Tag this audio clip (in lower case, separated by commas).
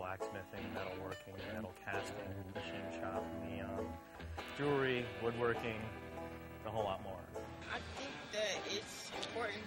music, speech